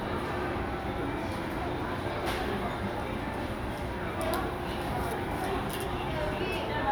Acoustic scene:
crowded indoor space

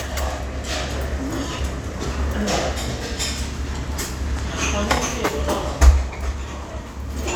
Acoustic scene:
crowded indoor space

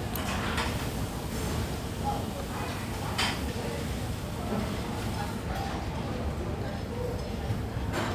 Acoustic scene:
cafe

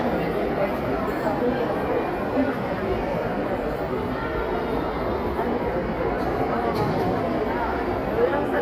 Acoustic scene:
crowded indoor space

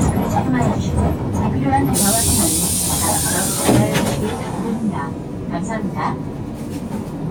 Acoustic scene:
bus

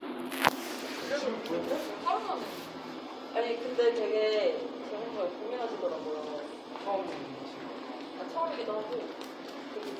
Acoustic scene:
crowded indoor space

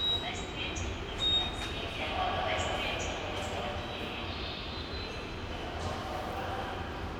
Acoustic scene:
subway station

